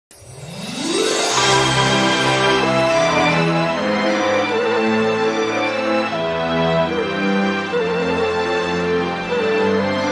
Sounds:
Theme music, Music

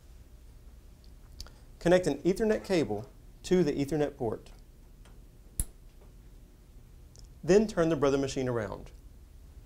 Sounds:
Speech

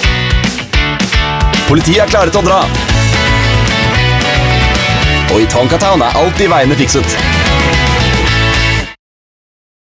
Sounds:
Speech, Music

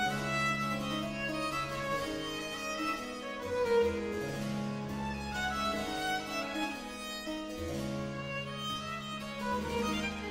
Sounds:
fiddle, Musical instrument, Music

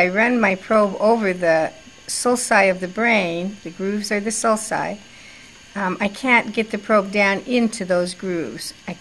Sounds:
Speech

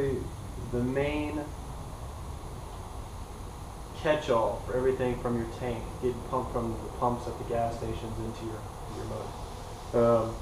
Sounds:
Speech

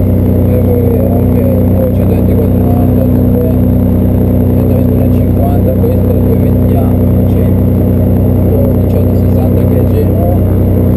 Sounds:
Speech

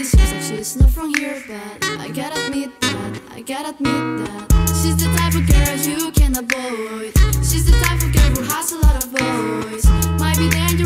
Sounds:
Music

